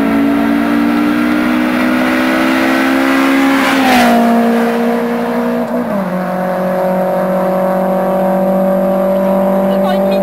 A vehicle speeds by very quickly